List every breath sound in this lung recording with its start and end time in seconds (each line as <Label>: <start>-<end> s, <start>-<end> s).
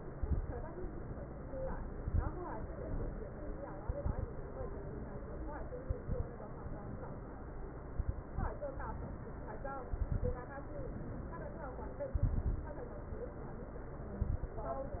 Inhalation: 0.10-0.51 s, 1.90-2.31 s, 3.82-4.31 s, 5.82-6.31 s, 7.92-8.55 s, 9.94-10.43 s, 12.14-12.67 s, 14.21-14.59 s
Crackles: 0.10-0.51 s, 1.90-2.31 s, 3.82-4.31 s, 5.82-6.31 s, 7.92-8.55 s, 9.94-10.43 s, 12.14-12.67 s, 14.21-14.59 s